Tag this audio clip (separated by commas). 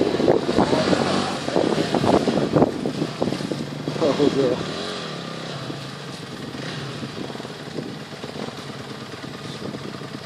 Speech